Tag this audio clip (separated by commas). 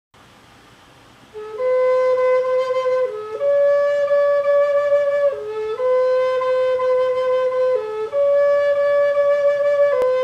inside a small room, Flute, Music